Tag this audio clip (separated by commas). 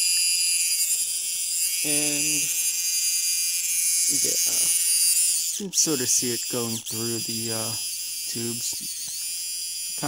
inside a large room or hall, Speech